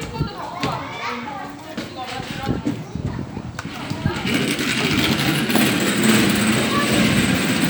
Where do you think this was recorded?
in a park